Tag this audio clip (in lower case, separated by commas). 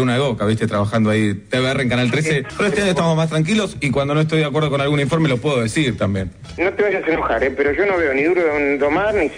speech, music, radio